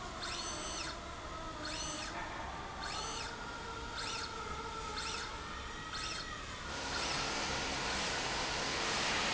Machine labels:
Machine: slide rail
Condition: normal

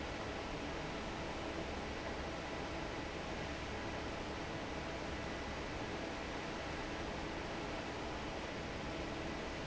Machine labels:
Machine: fan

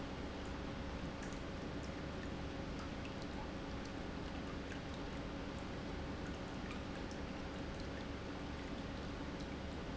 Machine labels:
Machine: pump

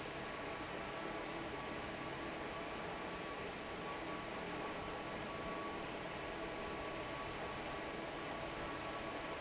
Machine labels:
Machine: fan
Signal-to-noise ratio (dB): 6 dB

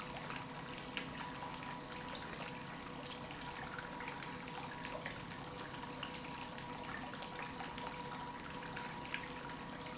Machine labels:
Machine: pump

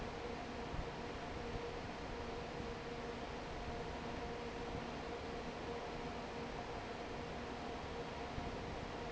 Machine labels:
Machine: fan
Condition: normal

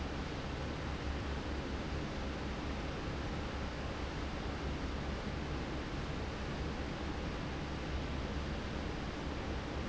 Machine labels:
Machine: fan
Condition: normal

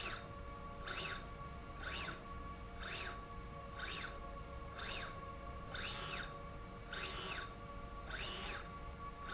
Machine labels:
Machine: slide rail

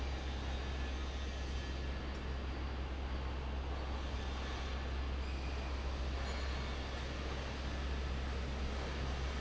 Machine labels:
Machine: fan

